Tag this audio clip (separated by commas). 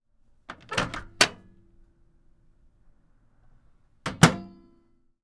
Microwave oven, home sounds